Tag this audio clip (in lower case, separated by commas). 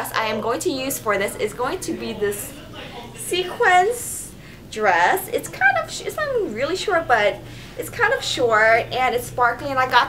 speech, inside a small room